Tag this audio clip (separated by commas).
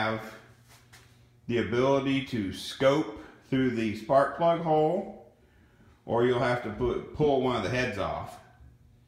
Speech